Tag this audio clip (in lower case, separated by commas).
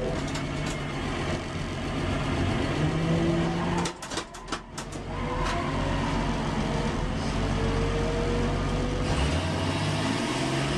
car, motor vehicle (road), vehicle